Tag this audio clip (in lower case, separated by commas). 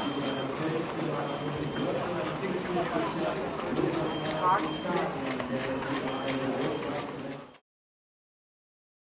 outside, urban or man-made, speech, run